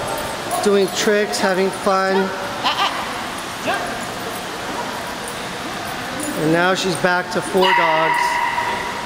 Roaring is present, an adult male speaks, and dogs are barking and yipping